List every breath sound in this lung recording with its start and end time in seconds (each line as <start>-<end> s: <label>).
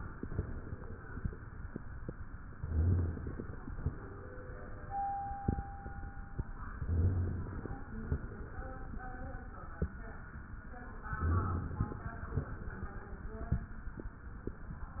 0.15-1.43 s: exhalation
2.54-3.44 s: rhonchi
2.60-3.59 s: inhalation
3.72-4.99 s: exhalation
6.79-7.67 s: rhonchi
6.79-7.82 s: inhalation
7.99-9.37 s: exhalation
11.20-12.07 s: inhalation
11.20-12.07 s: rhonchi
12.16-13.55 s: exhalation